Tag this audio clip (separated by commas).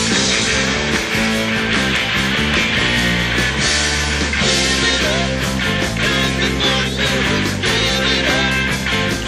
Psychedelic rock, Music